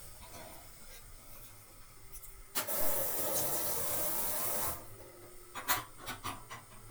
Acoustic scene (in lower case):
kitchen